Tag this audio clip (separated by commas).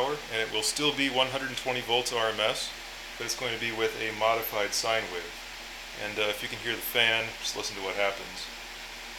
Smoke detector